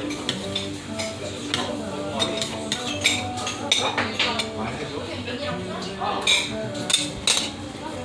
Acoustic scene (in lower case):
restaurant